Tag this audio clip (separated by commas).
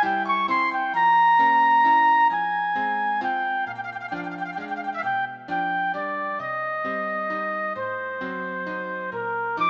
Harmonica, Wind instrument